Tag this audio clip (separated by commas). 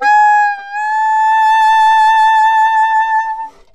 Wind instrument, Musical instrument, Music